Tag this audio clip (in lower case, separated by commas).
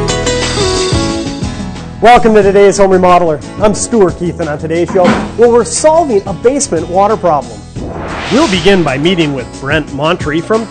speech, music